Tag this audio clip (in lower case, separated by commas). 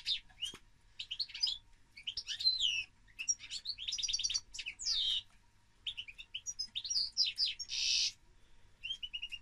canary calling